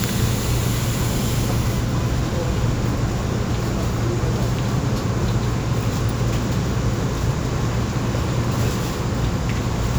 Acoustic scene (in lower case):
subway train